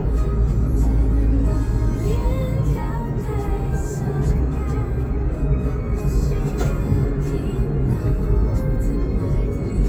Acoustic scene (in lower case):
car